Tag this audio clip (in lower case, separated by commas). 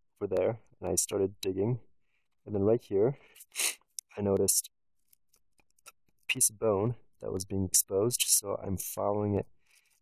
speech